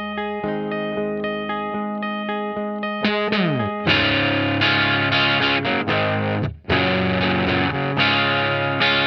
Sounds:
electric guitar, musical instrument, guitar, music, strum, plucked string instrument

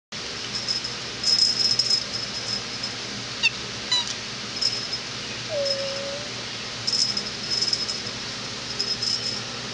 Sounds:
meow, domestic animals, animal, cat

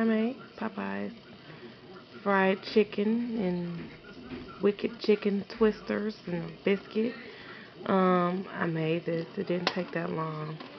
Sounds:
speech

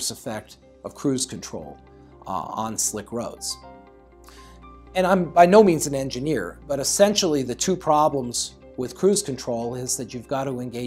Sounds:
music, speech

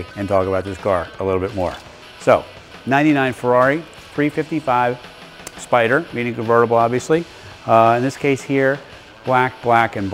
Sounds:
speech, music

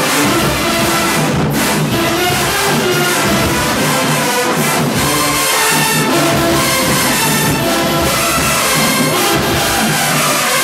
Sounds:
people marching

